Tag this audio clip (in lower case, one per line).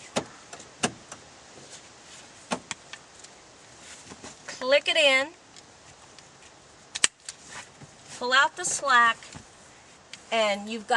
speech